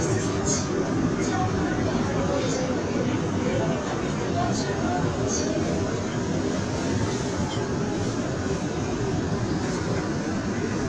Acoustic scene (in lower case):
subway train